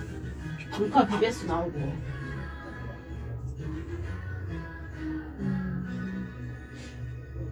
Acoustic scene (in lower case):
cafe